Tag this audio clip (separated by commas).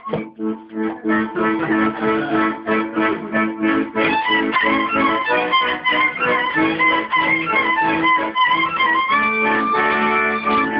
Music, Accordion, Violin, Bowed string instrument